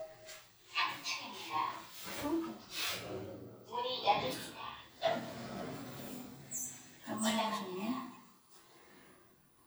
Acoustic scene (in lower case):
elevator